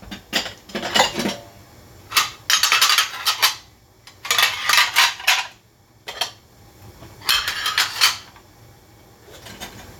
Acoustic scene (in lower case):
kitchen